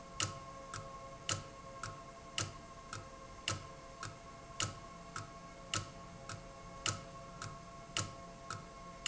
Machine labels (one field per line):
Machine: valve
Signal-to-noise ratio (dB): 6 dB